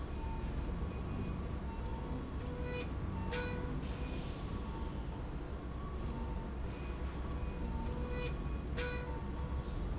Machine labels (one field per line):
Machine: slide rail